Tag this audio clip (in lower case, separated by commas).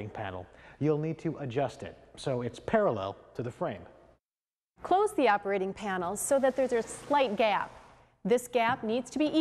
sliding door, speech